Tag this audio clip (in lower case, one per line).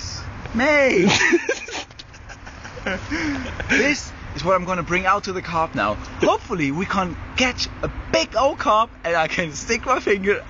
speech